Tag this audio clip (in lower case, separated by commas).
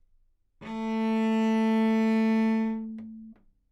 musical instrument, bowed string instrument, music